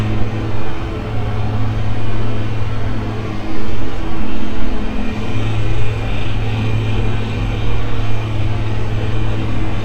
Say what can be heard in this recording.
unidentified impact machinery